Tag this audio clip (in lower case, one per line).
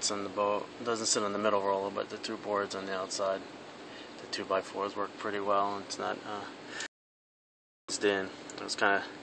speech